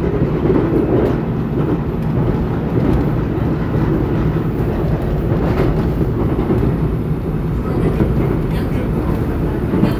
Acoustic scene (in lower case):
subway train